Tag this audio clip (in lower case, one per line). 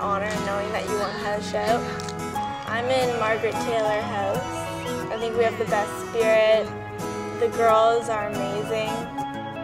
music
speech